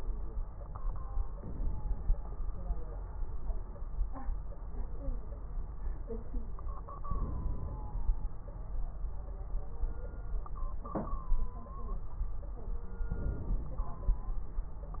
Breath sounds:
1.37-2.19 s: inhalation
7.07-7.89 s: inhalation
7.07-7.89 s: crackles
13.11-14.03 s: inhalation
13.11-14.03 s: crackles

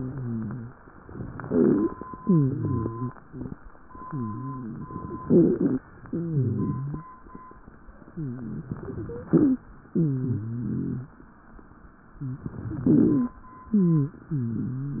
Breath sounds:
0.00-0.70 s: wheeze
1.08-2.01 s: inhalation
1.36-1.93 s: wheeze
2.11-3.09 s: exhalation
2.19-3.13 s: wheeze
3.27-3.56 s: wheeze
4.04-4.86 s: wheeze
5.20-5.82 s: inhalation
5.20-5.82 s: wheeze
6.06-7.05 s: exhalation
6.06-7.05 s: wheeze
8.09-8.68 s: wheeze
8.71-9.62 s: inhalation
9.01-9.64 s: wheeze
9.90-11.12 s: exhalation
9.90-11.12 s: wheeze
12.19-13.41 s: inhalation
12.19-13.41 s: wheeze
13.71-15.00 s: exhalation
13.71-15.00 s: wheeze

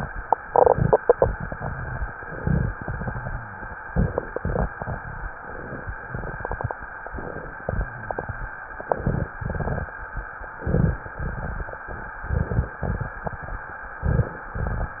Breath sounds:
2.13-2.69 s: inhalation
2.79-3.63 s: exhalation
2.79-3.63 s: rhonchi
3.89-4.68 s: inhalation
4.74-5.30 s: exhalation
5.43-5.97 s: inhalation
6.09-6.76 s: exhalation
7.13-7.68 s: inhalation
7.78-8.32 s: exhalation
8.80-9.35 s: inhalation
8.80-9.35 s: crackles
9.39-9.93 s: exhalation
9.39-9.93 s: crackles
10.66-11.13 s: inhalation
10.66-11.13 s: rhonchi
11.18-11.89 s: exhalation
11.18-11.89 s: crackles
12.22-12.78 s: inhalation
12.22-12.78 s: crackles
12.83-13.18 s: exhalation
14.06-14.40 s: rhonchi
14.06-14.52 s: inhalation
14.57-15.00 s: exhalation

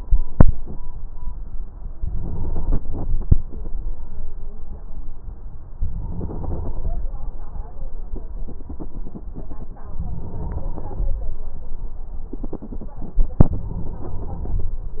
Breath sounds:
1.98-3.25 s: inhalation
5.76-7.03 s: inhalation
9.97-11.23 s: inhalation
13.51-14.77 s: inhalation

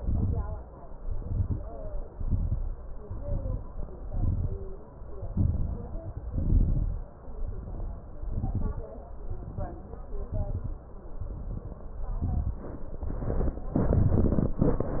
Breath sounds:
0.00-0.57 s: exhalation
0.00-0.57 s: crackles
1.03-1.63 s: inhalation
1.03-1.63 s: crackles
2.03-2.64 s: exhalation
2.03-2.64 s: crackles
3.04-3.76 s: inhalation
3.04-3.76 s: crackles
3.99-4.71 s: exhalation
3.99-4.71 s: crackles
5.34-6.27 s: inhalation
5.34-6.27 s: crackles
6.33-7.14 s: exhalation
6.33-7.14 s: crackles
7.33-8.15 s: inhalation
7.33-8.15 s: crackles
8.17-8.99 s: exhalation
8.17-8.99 s: crackles
9.27-10.01 s: inhalation
9.27-10.01 s: crackles
10.11-10.85 s: exhalation
10.11-10.85 s: crackles
11.21-11.95 s: inhalation
11.21-11.95 s: crackles
12.16-12.90 s: exhalation
12.16-12.90 s: crackles
13.02-13.76 s: inhalation
13.02-13.76 s: crackles
13.78-15.00 s: exhalation
13.78-15.00 s: crackles

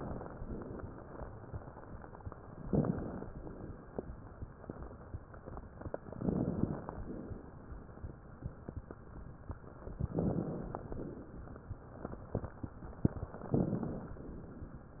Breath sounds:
2.64-3.28 s: inhalation
2.64-3.28 s: crackles
3.28-3.97 s: exhalation
6.19-6.87 s: inhalation
6.19-6.87 s: crackles
6.93-7.61 s: exhalation
10.19-10.87 s: inhalation
10.19-10.87 s: crackles
10.85-11.54 s: exhalation
13.51-14.19 s: inhalation
13.51-14.19 s: crackles

